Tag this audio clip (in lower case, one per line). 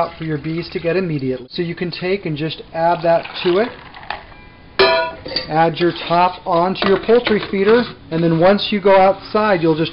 speech